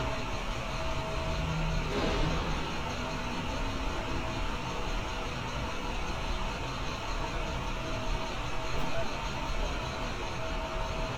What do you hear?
large-sounding engine, non-machinery impact